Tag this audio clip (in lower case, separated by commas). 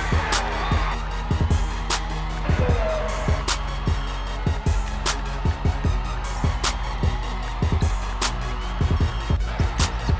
speech, inside a large room or hall, music